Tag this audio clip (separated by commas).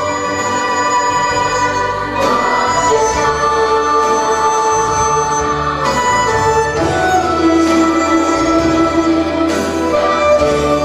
Music